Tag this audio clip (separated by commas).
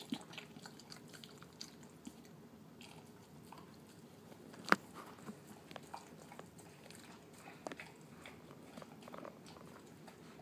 Animal, Dog, pets